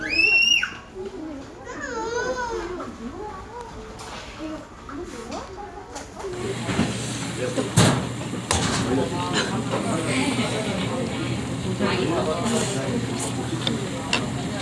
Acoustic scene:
crowded indoor space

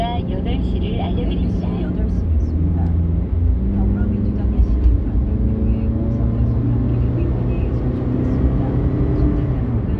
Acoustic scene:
car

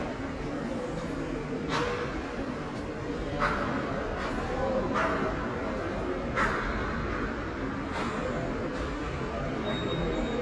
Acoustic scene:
subway station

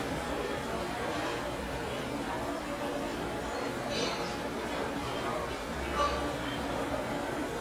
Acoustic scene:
restaurant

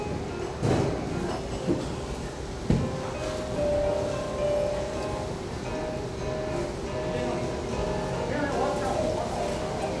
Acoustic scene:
restaurant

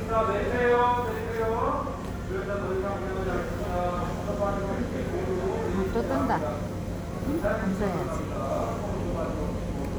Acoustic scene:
subway station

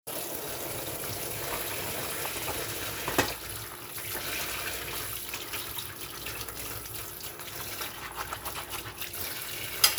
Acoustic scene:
kitchen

